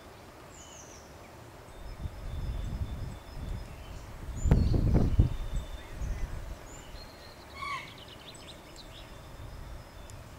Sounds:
woodpecker pecking tree

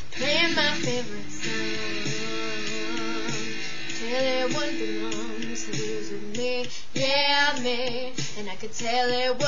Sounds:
music
female singing
rock and roll

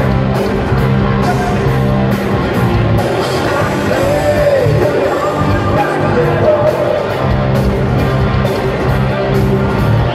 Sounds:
music
guitar
plucked string instrument
electric guitar
musical instrument

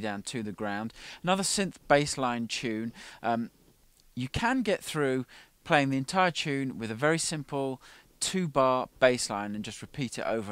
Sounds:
speech

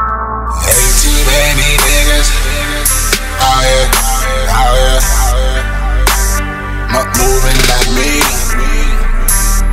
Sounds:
music
folk music

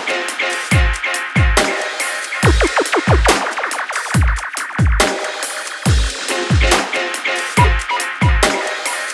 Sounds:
music
drum and bass

